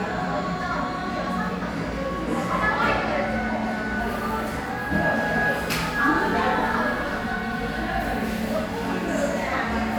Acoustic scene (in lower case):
crowded indoor space